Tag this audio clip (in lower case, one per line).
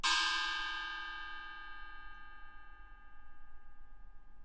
musical instrument
gong
music
percussion